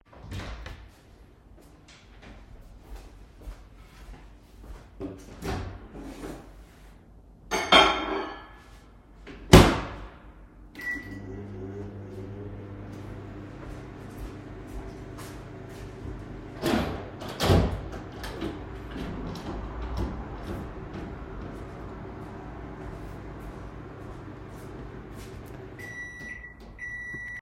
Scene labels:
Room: kitchen; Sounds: door, footsteps, microwave, cutlery and dishes, window

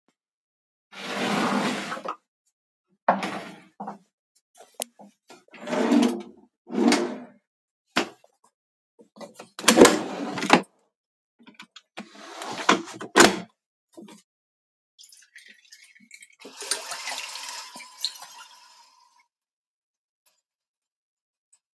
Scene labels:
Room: kitchen; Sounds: door (more than once), window, wardrobe or drawer (more than once), running water

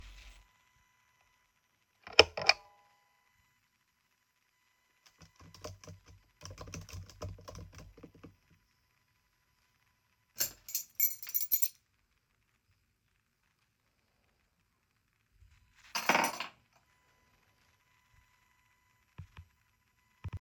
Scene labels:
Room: office; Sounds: light switch, keyboard typing, keys

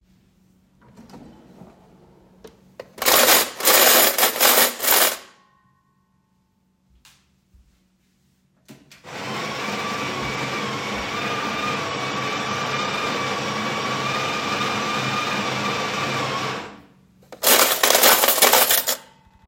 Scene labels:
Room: kitchen; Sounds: wardrobe or drawer, cutlery and dishes, coffee machine

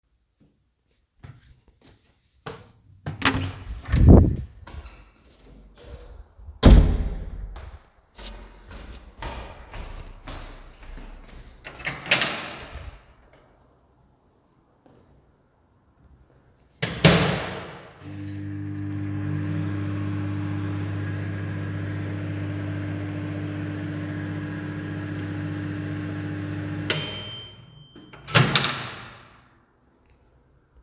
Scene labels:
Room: kitchen; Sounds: footsteps, door (more than once), microwave

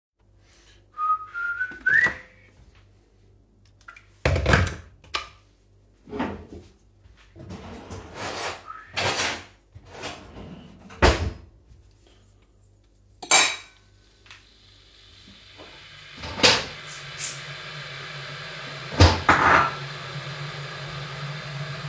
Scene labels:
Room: kitchen; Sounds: wardrobe or drawer (more than once), cutlery and dishes

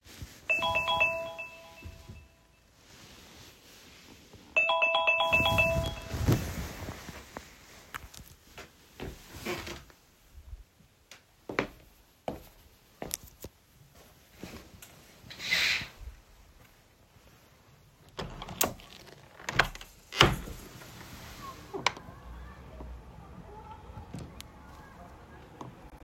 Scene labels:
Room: bedroom; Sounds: phone ringing, footsteps, window

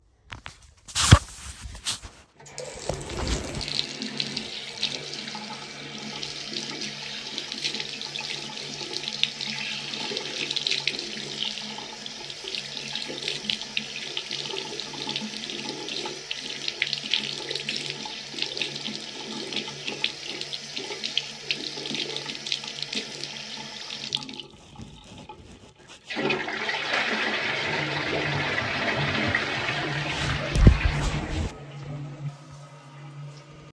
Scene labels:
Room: bathroom; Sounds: running water, toilet flushing

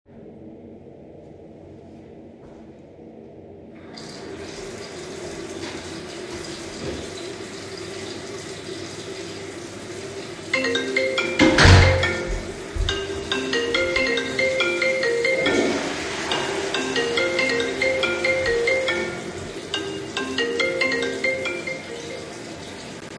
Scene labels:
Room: bathroom; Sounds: footsteps, running water, phone ringing, door, toilet flushing

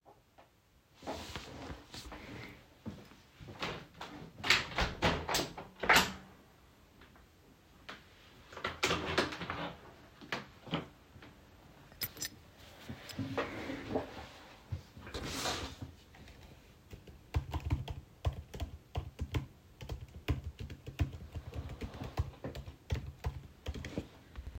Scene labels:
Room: bedroom; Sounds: keys, window (more than once), keyboard typing

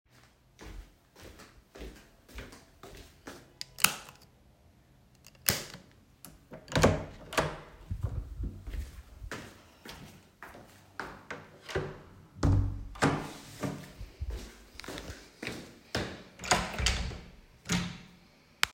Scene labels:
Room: hallway, bedroom; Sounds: footsteps, light switch, door (more than once)

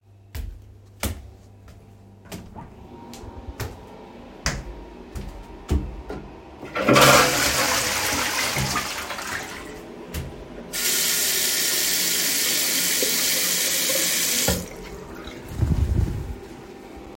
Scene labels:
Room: bathroom; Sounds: footsteps, toilet flushing, running water

